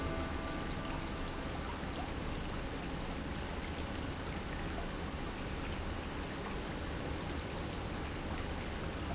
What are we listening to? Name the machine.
pump